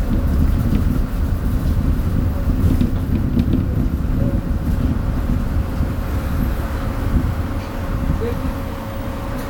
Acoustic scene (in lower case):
bus